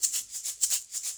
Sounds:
Music, Percussion, Musical instrument, Rattle (instrument)

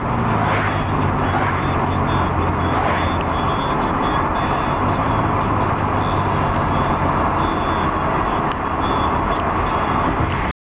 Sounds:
Motor vehicle (road), Vehicle, Traffic noise, Engine, Car

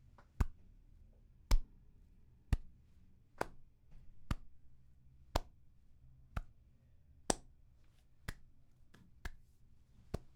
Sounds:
Hands

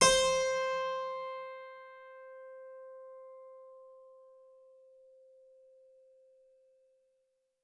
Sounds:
Music, Musical instrument, Keyboard (musical)

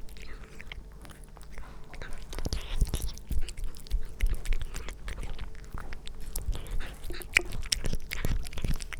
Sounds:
Cat, Domestic animals, Animal

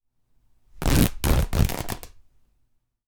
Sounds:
Tearing

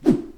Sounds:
swoosh

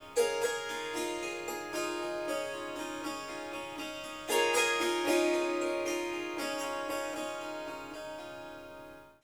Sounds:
Music, Musical instrument, Harp

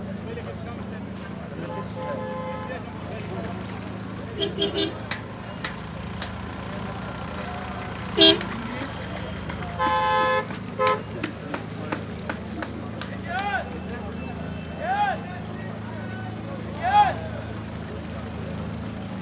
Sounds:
Motor vehicle (road), Vehicle

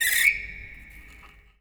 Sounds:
Screech

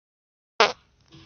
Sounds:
Fart

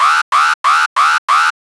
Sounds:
Alarm

